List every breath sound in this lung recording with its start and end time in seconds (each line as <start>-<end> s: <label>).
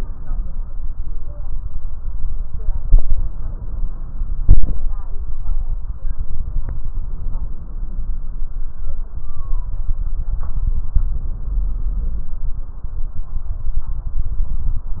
6.91-8.29 s: inhalation